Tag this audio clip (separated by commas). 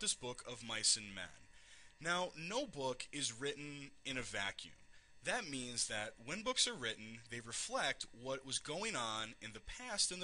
Speech